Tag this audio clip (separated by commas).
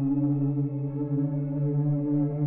Musical instrument, Music